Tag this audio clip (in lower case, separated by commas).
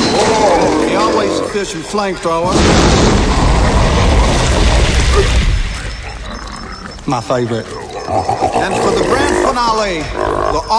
speech, inside a large room or hall